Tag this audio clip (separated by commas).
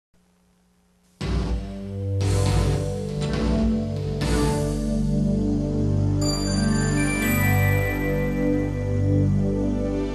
Music